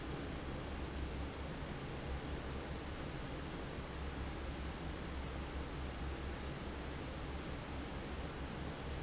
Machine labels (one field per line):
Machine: fan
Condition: normal